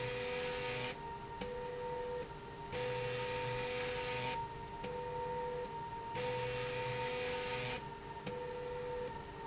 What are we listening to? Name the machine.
slide rail